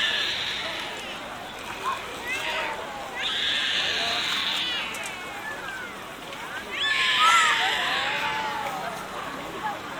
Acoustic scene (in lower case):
park